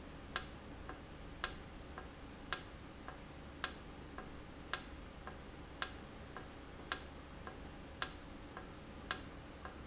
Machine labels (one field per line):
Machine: valve